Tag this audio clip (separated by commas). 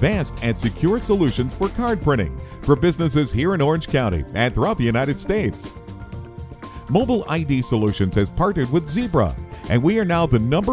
Music, Speech